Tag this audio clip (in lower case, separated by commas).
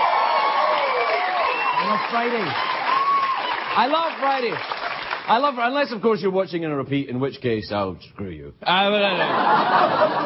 narration, speech